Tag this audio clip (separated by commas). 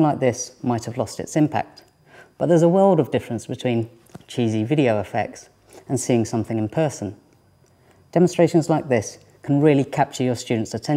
Speech